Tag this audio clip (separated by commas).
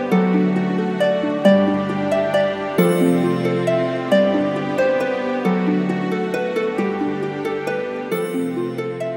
Music